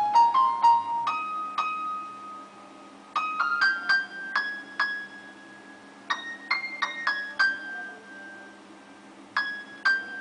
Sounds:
Music

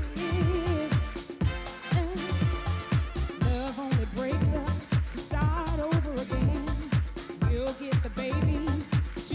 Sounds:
Music

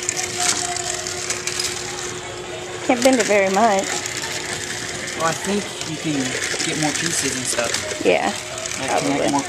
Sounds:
Speech

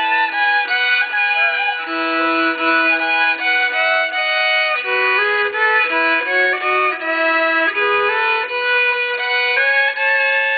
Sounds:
fiddle, Musical instrument, Music

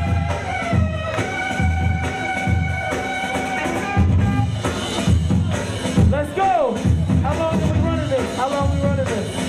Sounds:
Music, Speech

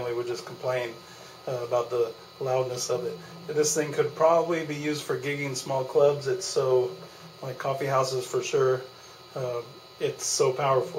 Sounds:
Speech

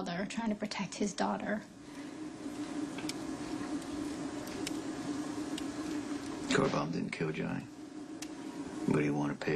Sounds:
Speech

